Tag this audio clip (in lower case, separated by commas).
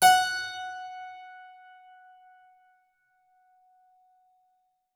music, keyboard (musical), musical instrument